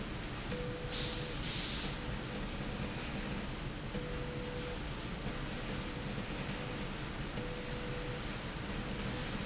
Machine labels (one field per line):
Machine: slide rail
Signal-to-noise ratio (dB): -6 dB